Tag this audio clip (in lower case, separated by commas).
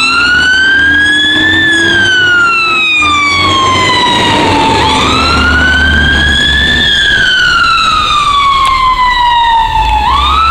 fire engine, motor vehicle (road), vehicle, truck, emergency vehicle